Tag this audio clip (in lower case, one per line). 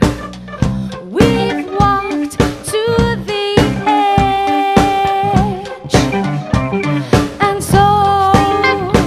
funk
music